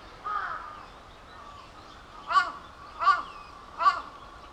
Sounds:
crow
wild animals
bird
animal

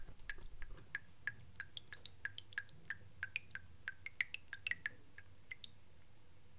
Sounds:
liquid
drip

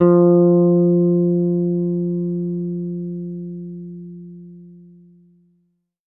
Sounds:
music
plucked string instrument
bass guitar
musical instrument
guitar

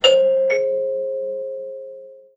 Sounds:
doorbell
alarm
door
home sounds

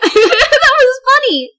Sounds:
human voice
female speech
laughter
speech

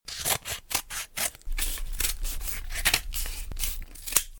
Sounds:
domestic sounds
scissors

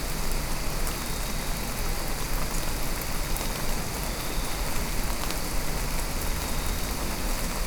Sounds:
water
rain

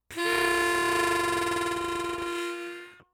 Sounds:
music
musical instrument
harmonica

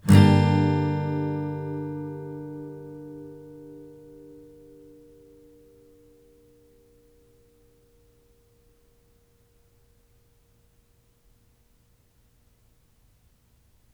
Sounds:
musical instrument
strum
guitar
music
plucked string instrument

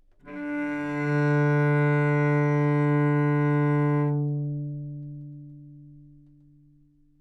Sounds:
music
musical instrument
bowed string instrument

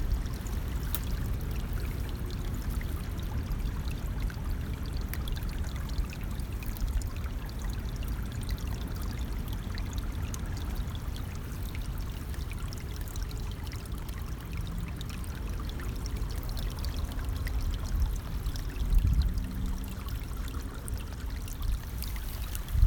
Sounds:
water
trickle
traffic noise
stream
liquid
motor vehicle (road)
pour
vehicle

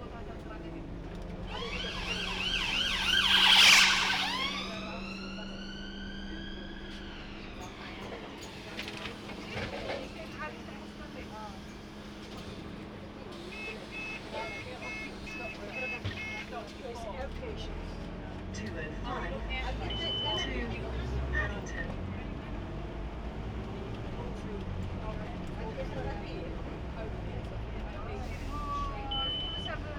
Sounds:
motor vehicle (road)
vehicle
bus

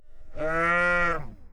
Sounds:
livestock
animal

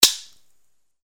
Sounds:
gunfire
explosion

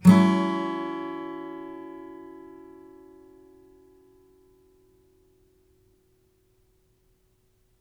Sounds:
musical instrument
strum
music
plucked string instrument
guitar
acoustic guitar

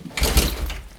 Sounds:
mechanisms

